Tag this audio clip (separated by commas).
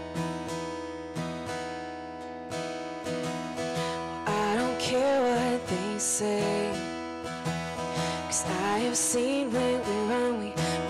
Music